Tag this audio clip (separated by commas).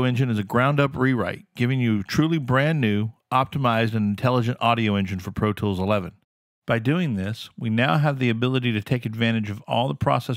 Speech